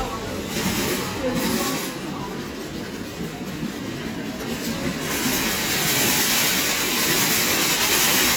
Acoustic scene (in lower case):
crowded indoor space